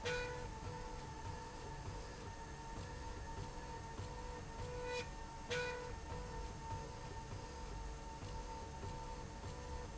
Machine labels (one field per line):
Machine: slide rail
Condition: normal